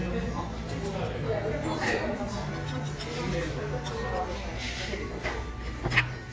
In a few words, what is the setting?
cafe